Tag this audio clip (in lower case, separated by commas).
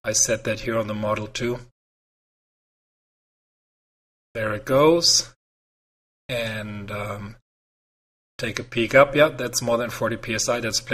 speech, inside a small room